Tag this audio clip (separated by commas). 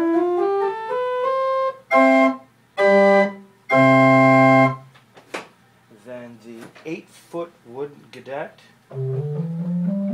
Musical instrument, Organ, Piano, Music, Speech, Keyboard (musical)